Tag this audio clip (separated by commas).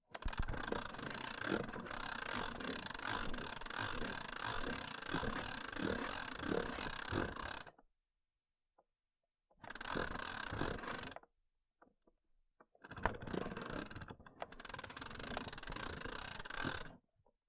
Mechanisms